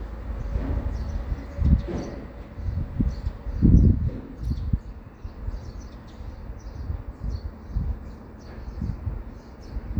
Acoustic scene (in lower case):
residential area